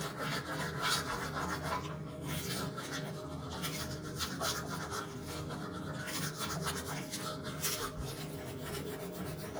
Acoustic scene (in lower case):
restroom